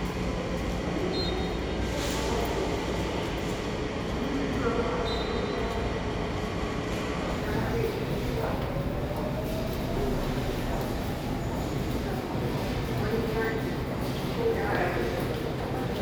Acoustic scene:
subway station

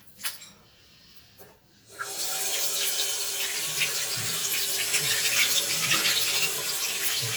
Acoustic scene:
restroom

